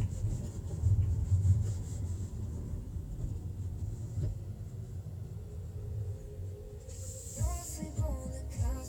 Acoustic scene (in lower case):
car